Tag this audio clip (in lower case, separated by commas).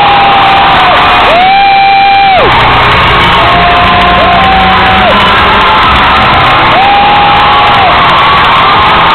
people cheering, cheering, music